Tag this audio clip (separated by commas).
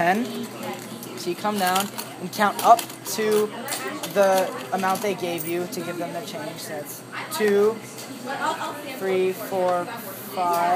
Speech